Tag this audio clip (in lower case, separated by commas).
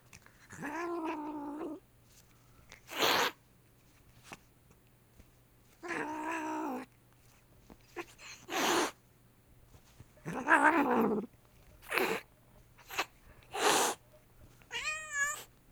cat, pets, hiss, animal